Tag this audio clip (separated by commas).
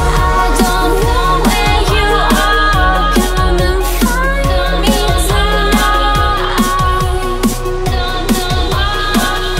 Dubstep, Electronic music, Music